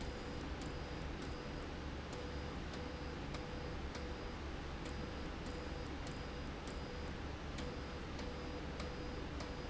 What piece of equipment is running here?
slide rail